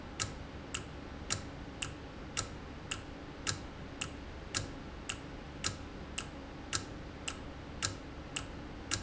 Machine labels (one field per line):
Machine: valve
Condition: normal